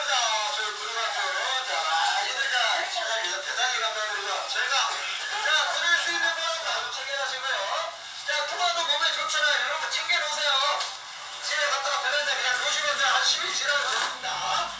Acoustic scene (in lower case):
crowded indoor space